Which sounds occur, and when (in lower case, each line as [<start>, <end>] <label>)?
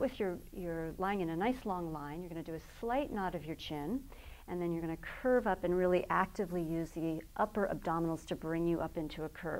[0.01, 9.55] background noise
[0.01, 0.35] female speech
[0.52, 2.58] female speech
[2.80, 3.95] female speech
[4.41, 4.92] female speech
[5.14, 7.17] female speech
[7.34, 9.55] female speech